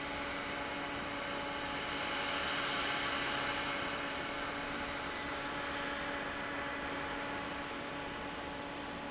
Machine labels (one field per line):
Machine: fan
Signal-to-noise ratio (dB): -6 dB